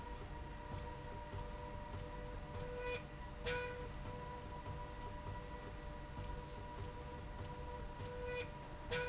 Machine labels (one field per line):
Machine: slide rail